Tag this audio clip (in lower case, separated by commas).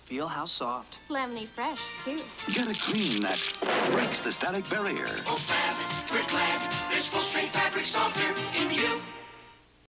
music, speech